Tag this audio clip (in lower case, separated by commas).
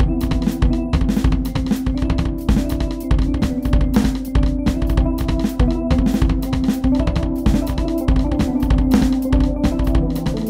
bass drum, music, drum, snare drum